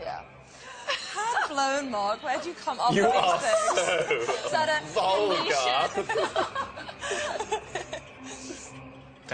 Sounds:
speech

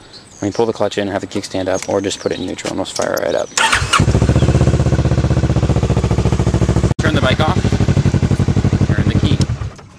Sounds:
vehicle, speech, motorcycle

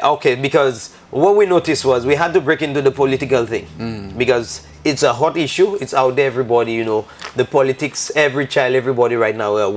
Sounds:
inside a small room, speech

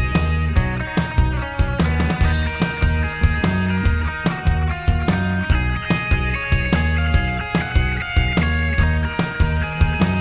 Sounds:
music, grunge

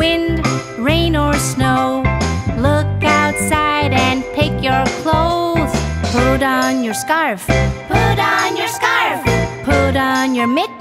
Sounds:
child singing

